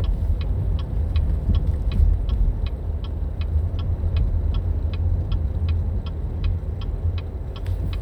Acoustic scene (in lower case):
car